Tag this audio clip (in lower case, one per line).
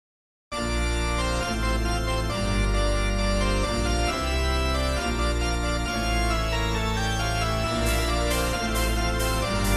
harpsichord